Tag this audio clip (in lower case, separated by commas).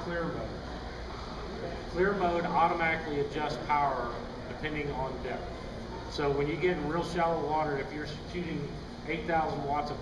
speech